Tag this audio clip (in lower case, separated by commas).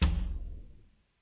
wood